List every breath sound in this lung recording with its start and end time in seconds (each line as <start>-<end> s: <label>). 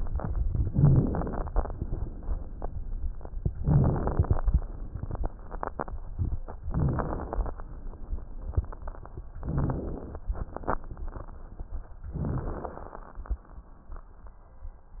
0.65-1.70 s: inhalation
0.65-1.70 s: crackles
3.62-4.39 s: inhalation
3.62-4.39 s: crackles
6.68-7.62 s: inhalation
6.68-7.62 s: crackles
9.41-10.21 s: inhalation
12.13-13.25 s: inhalation
12.13-13.25 s: crackles